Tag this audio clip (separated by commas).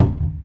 Cupboard open or close, Domestic sounds